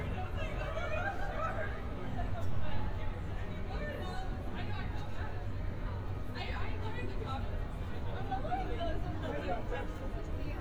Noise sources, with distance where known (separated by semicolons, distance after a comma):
person or small group talking, near